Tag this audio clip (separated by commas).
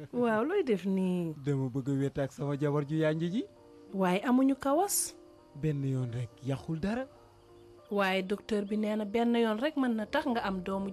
Speech